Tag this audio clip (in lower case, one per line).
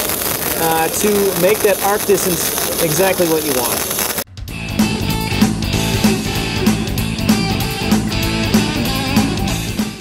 speech
music